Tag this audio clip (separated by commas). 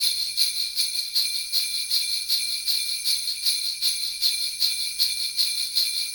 Bell